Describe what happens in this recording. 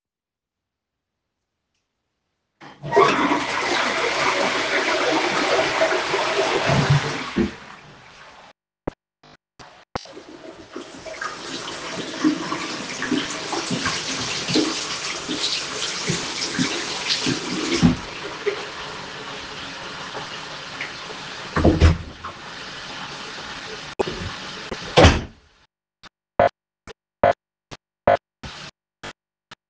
I flushed the toilet, turned on the bathroom sink, washed my hands, turned off the sink, grabbed the hand towel, opened the door, closed the door behind me.